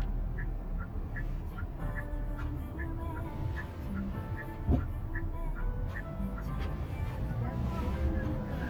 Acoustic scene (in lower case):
car